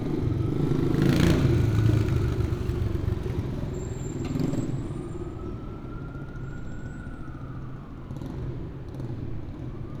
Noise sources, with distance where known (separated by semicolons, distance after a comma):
medium-sounding engine, near; siren, far